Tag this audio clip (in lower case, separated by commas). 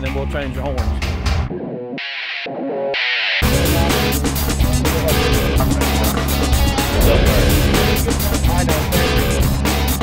music, outside, urban or man-made, speech